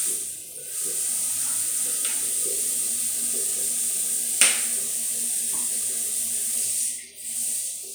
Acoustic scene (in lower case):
restroom